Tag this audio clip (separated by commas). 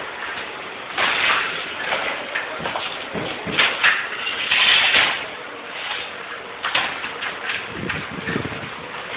Speech